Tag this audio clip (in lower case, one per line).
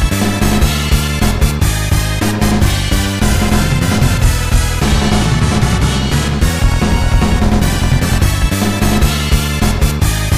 video game music
music